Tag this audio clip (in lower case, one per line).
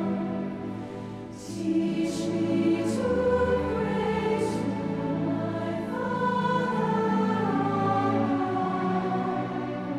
music